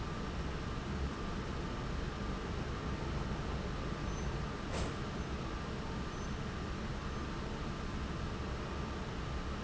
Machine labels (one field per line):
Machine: fan